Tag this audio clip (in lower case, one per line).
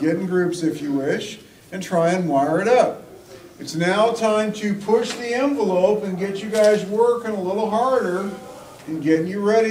speech